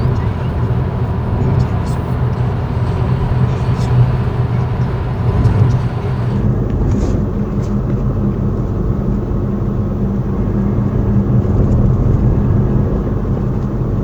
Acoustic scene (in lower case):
car